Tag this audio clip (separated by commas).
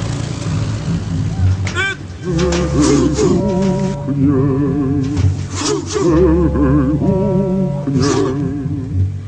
outside, rural or natural, Speech, Music